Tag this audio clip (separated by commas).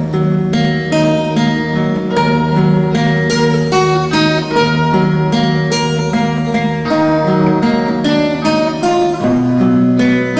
Music, Musical instrument, Guitar, Acoustic guitar